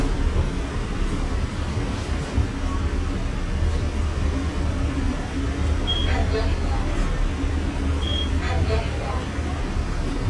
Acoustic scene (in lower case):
bus